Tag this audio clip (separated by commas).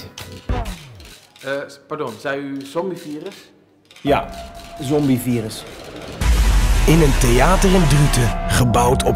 Speech, Music